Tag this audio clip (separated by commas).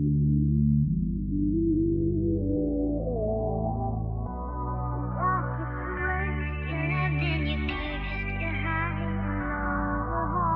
Music